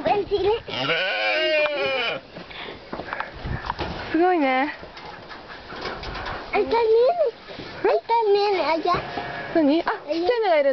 A young child talks as someone us talks to them in another language